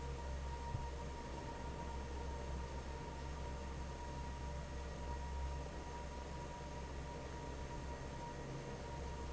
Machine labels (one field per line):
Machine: fan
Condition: normal